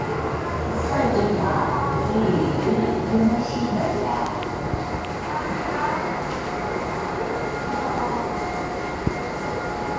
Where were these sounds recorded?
in a subway station